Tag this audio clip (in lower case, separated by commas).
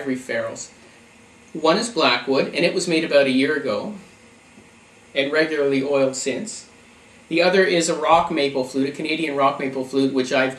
speech